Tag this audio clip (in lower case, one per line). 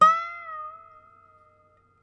musical instrument
music
harp